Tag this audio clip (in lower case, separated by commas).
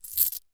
coin (dropping), home sounds